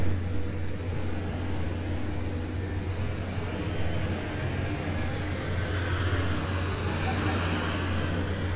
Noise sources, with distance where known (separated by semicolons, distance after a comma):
large-sounding engine